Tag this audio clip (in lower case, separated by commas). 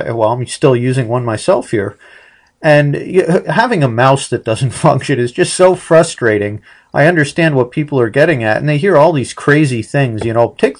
speech